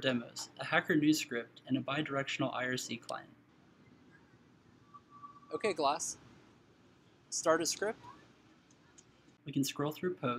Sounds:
Speech

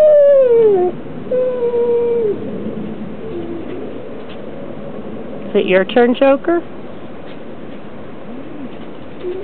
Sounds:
Animal, Domestic animals, canids, Dog, Speech

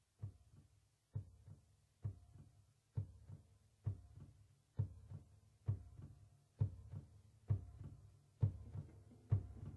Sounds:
Heart sounds

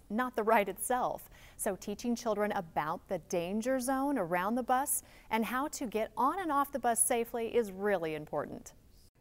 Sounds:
Speech

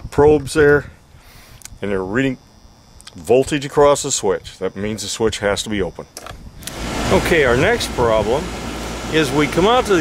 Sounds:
Speech

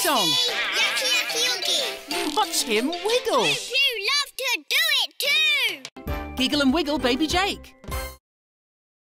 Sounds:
Speech, Music

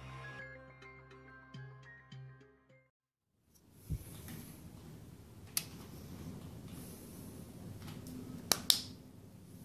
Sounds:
Music

